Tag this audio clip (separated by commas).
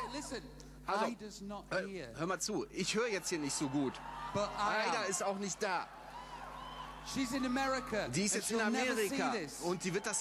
Speech